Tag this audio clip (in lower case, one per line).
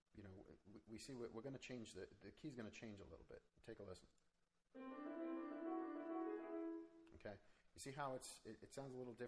keyboard (musical)
piano